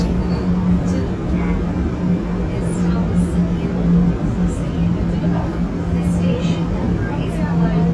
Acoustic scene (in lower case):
subway train